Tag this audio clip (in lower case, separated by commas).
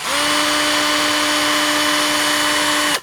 tools